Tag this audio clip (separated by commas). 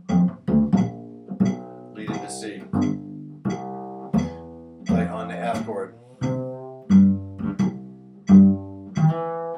Cello, Pizzicato, Bowed string instrument, Double bass